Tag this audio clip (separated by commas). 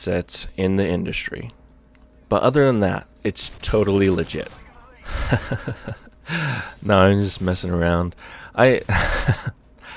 Speech